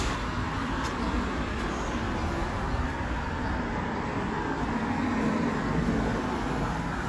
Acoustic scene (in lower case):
street